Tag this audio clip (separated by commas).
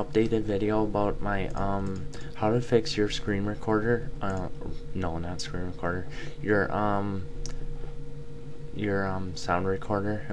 Speech